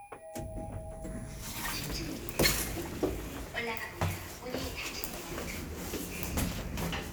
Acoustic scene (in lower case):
elevator